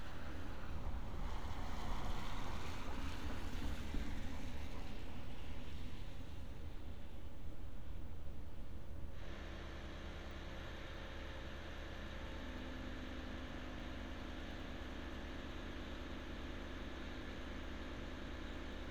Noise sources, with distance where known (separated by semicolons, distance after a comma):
medium-sounding engine